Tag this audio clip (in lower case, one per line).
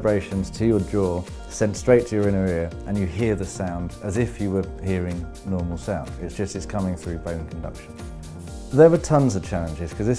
music
speech